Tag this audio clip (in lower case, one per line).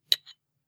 cutlery
home sounds